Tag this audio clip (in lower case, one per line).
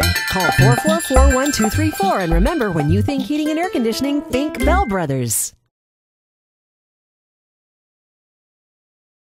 music
speech